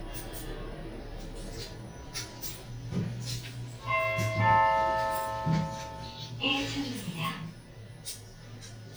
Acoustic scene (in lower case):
elevator